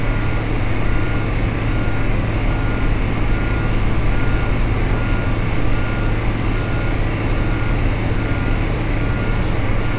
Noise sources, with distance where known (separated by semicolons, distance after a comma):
large-sounding engine, near